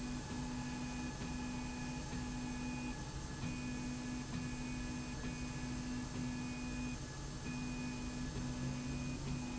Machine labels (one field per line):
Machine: slide rail